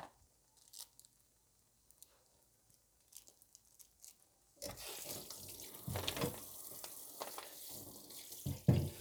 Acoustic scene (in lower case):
kitchen